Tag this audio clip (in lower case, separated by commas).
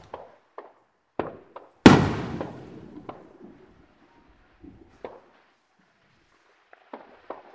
explosion, fireworks